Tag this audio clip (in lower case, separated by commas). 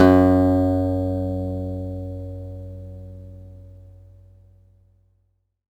guitar, plucked string instrument, music, acoustic guitar, musical instrument